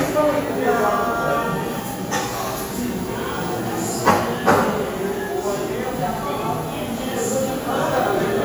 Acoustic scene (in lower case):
cafe